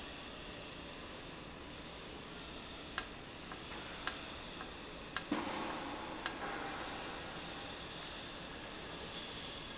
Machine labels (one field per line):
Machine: valve